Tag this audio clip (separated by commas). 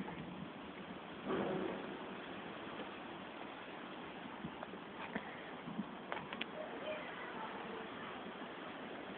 Speech